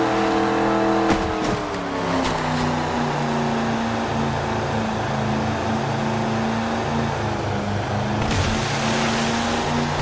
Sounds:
speedboat
vehicle

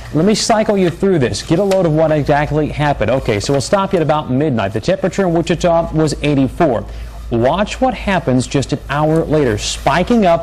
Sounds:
speech

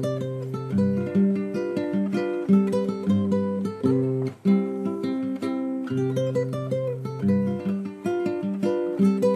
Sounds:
music

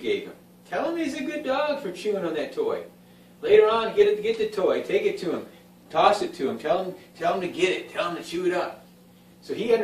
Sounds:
speech

